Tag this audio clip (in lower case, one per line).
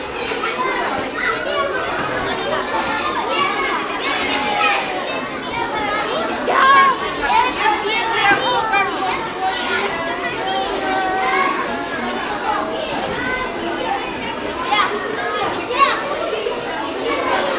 human voice
human group actions
shout